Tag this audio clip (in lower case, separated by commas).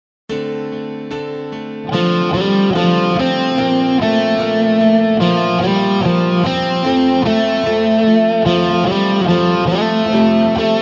electric guitar, music, musical instrument, guitar, tapping (guitar technique), plucked string instrument